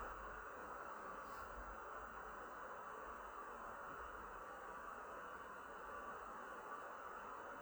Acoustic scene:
elevator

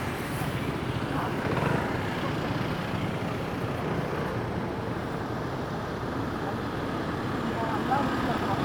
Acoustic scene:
street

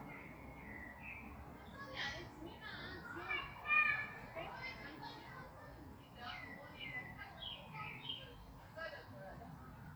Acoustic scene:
park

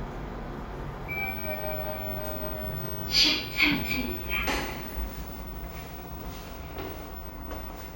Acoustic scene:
elevator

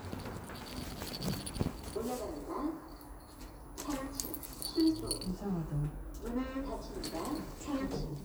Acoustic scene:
elevator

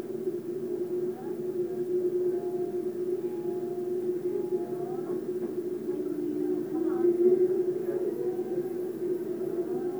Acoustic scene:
subway train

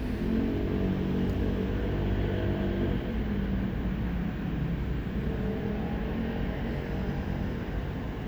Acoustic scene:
street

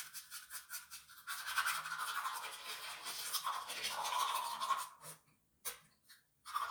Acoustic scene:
restroom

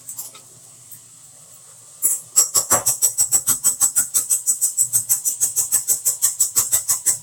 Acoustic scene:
kitchen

